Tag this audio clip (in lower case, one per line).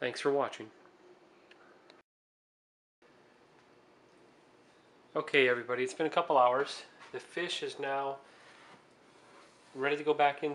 speech